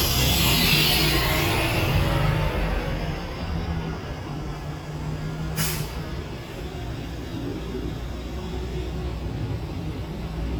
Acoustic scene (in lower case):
street